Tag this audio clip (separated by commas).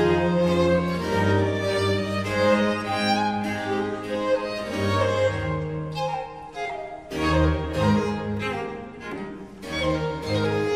Flute, Musical instrument, fiddle, Cello, Music